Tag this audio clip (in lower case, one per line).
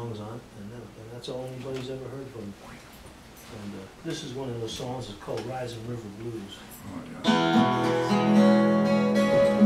music
speech